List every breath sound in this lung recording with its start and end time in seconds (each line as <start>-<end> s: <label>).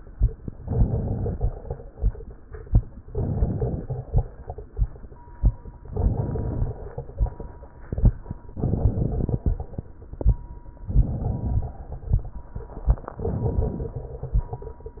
0.63-1.52 s: inhalation
0.63-1.52 s: crackles
3.09-3.99 s: inhalation
3.09-3.99 s: crackles
5.90-6.79 s: inhalation
5.90-6.79 s: crackles
8.56-9.56 s: inhalation
8.56-9.56 s: crackles
10.91-11.92 s: inhalation
10.91-11.92 s: crackles
13.11-14.12 s: inhalation
13.11-14.12 s: crackles